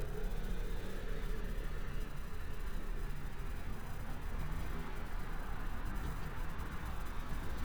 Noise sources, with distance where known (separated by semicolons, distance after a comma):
engine of unclear size